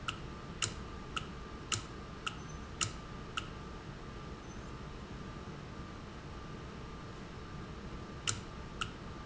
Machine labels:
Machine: valve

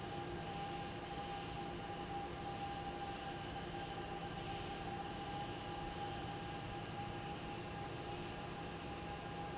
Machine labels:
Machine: fan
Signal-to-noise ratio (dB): 0 dB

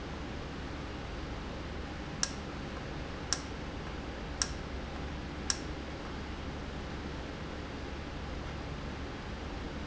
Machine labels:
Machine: valve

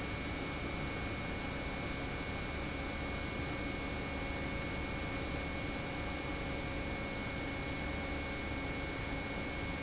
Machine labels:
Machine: pump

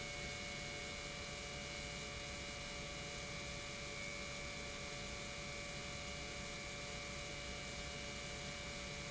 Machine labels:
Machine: pump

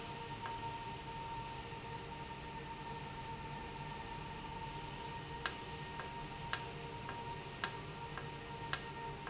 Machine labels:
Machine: valve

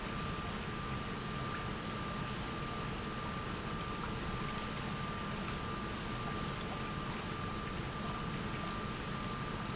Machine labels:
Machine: pump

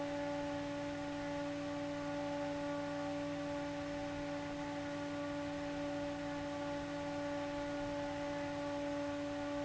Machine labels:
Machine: fan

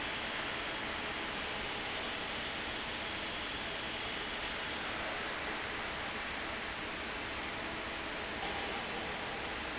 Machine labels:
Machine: fan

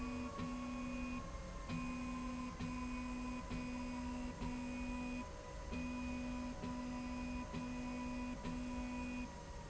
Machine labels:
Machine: slide rail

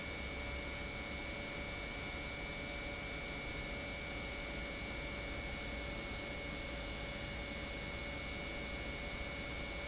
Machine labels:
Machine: pump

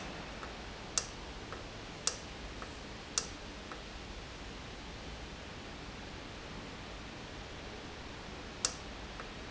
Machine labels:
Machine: valve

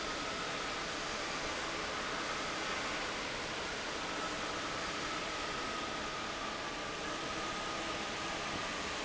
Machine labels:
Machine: fan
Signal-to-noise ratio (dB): -6 dB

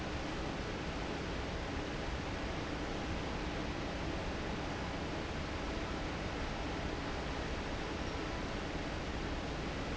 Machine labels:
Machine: fan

